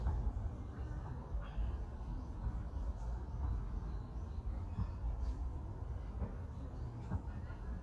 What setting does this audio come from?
park